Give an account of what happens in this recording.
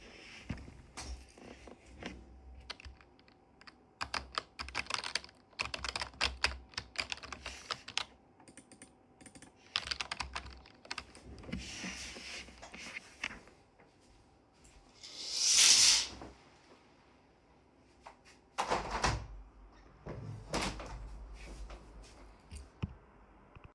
I sat on chair and started typing on keyboard, stood up, opened the window